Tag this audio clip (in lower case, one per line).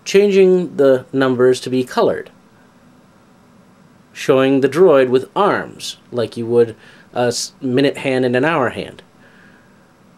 speech